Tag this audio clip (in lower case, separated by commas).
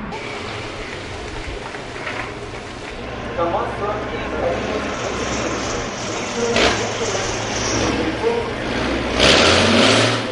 vehicle, speech, truck